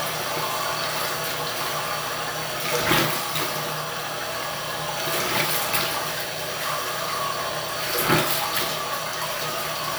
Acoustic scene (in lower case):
restroom